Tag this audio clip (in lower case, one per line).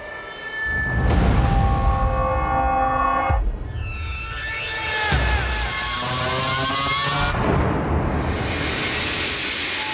music